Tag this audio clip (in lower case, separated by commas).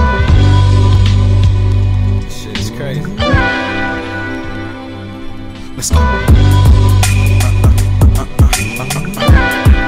sound effect, music